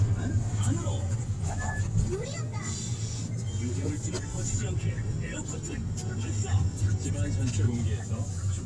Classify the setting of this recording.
car